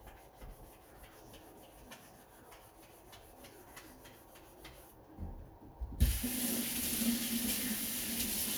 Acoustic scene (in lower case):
kitchen